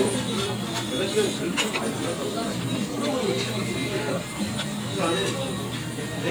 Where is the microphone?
in a crowded indoor space